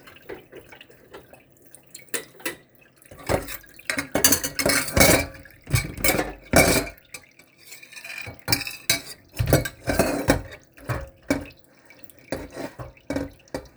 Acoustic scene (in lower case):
kitchen